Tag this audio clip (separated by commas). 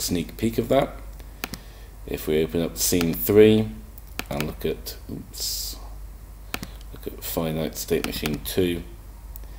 Speech